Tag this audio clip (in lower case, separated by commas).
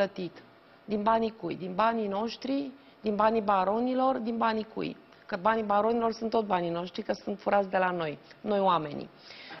speech